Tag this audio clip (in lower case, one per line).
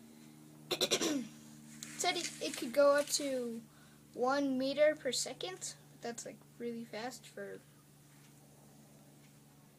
speech
child speech